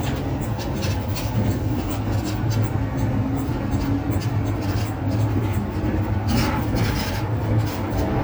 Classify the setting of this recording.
bus